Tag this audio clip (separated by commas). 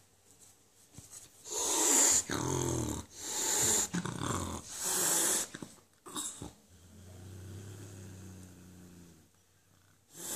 cat hissing